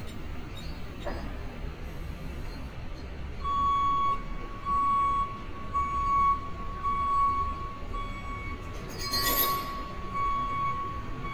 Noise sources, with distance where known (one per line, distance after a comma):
reverse beeper, near